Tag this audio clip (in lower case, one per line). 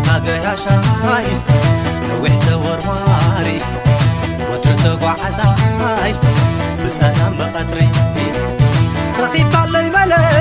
music